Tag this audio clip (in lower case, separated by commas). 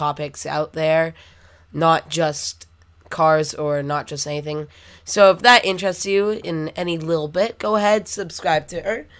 speech